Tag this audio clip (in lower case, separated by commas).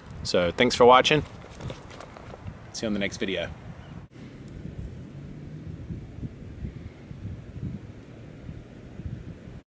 speech